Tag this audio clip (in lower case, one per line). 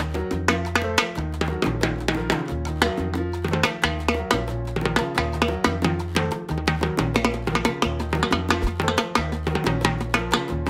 playing timbales